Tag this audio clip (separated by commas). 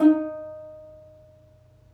Musical instrument, Plucked string instrument, Music